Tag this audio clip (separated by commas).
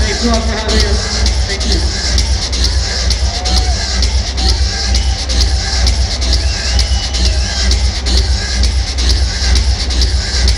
Music, Speech